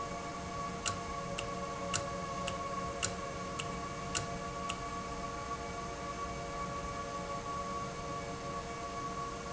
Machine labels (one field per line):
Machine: valve